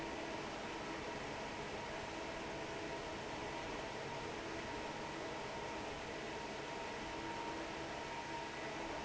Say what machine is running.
fan